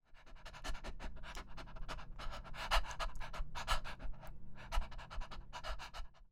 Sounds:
animal
pets
dog

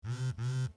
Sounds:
telephone
alarm

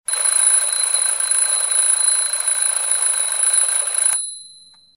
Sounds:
alarm

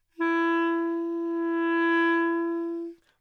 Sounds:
musical instrument
woodwind instrument
music

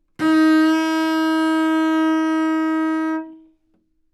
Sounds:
musical instrument
music
bowed string instrument

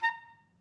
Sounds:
woodwind instrument
musical instrument
music

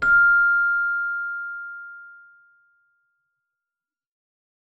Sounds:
music
musical instrument
keyboard (musical)

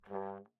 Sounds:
musical instrument
brass instrument
music

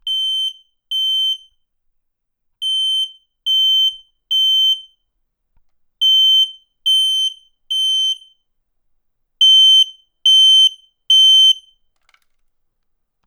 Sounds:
alarm

